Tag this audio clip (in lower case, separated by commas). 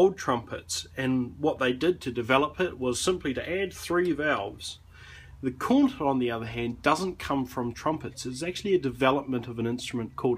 speech